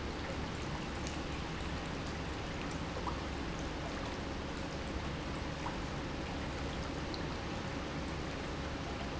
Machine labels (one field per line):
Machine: pump